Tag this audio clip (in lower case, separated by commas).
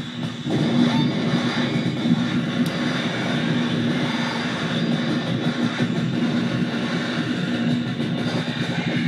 music, drum, synthesizer